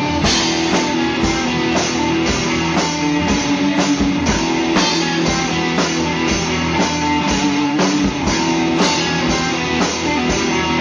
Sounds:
Music

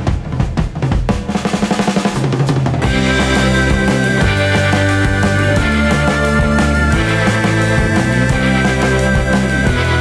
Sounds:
Rimshot, Bass drum, Snare drum, Drum roll, Drum kit, Drum, Percussion

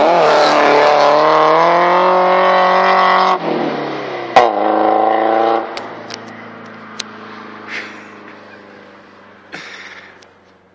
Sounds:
Car passing by

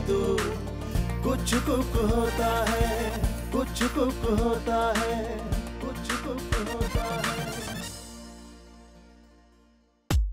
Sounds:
Music

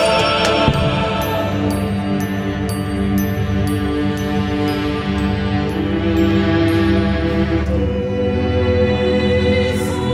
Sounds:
Choir, Music

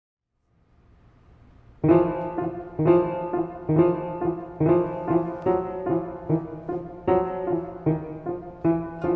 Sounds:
Music, Mandolin

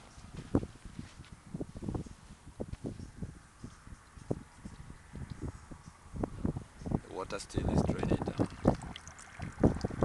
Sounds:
Speech, outside, rural or natural

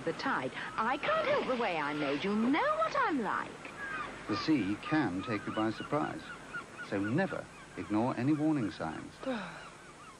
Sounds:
Speech

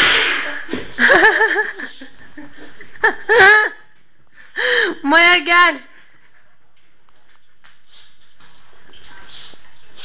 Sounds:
Speech

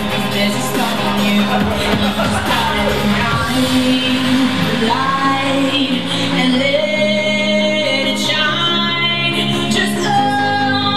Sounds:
Dubstep, Music

